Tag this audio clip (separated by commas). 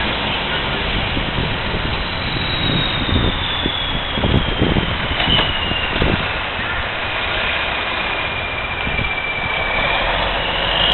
outside, urban or man-made, Vehicle